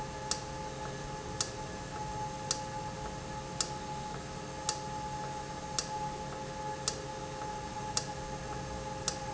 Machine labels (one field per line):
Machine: valve